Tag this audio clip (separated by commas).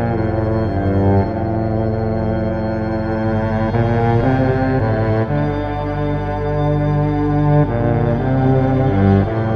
Musical instrument, Violin, Music